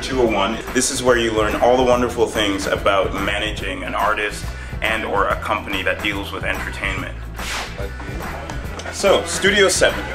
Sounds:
Music, Speech

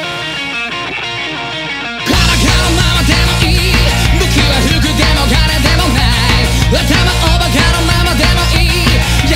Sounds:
Soundtrack music, Music

